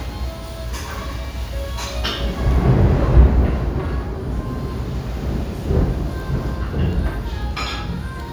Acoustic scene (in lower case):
restaurant